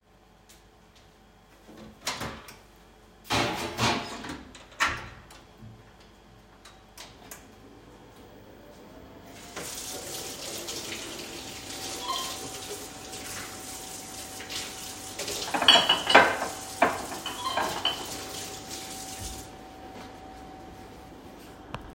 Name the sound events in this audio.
microwave, running water, phone ringing, cutlery and dishes